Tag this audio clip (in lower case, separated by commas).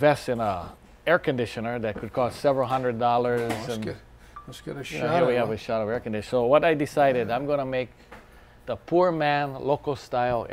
speech